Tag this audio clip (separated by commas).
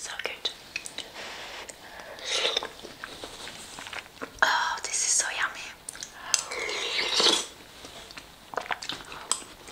people eating noodle